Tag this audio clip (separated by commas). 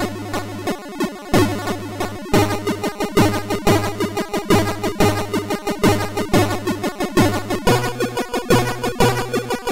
Music